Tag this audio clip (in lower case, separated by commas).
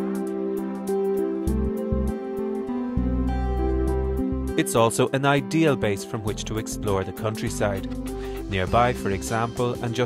music, speech